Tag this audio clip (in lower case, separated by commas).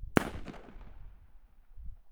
fireworks, explosion